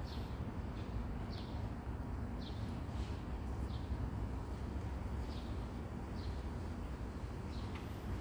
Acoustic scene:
residential area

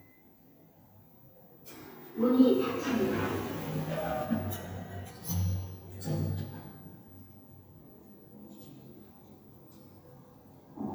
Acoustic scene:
elevator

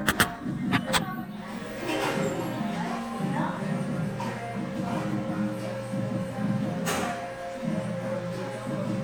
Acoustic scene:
cafe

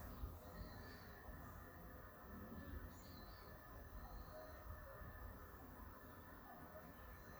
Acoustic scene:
park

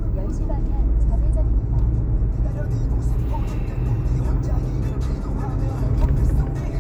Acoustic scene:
car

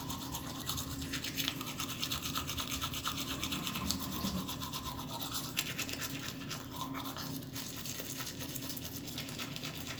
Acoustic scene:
restroom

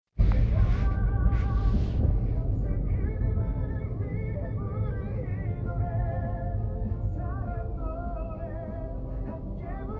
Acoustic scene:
car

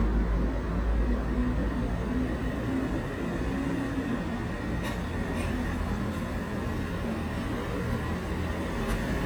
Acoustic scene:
residential area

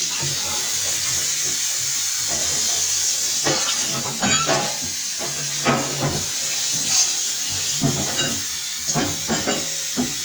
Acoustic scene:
kitchen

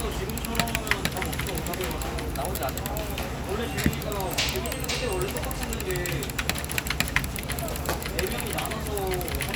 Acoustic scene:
crowded indoor space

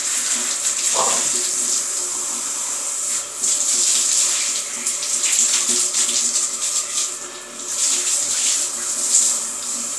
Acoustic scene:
restroom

